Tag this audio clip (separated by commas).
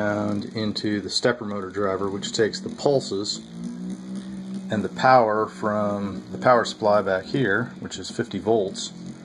Speech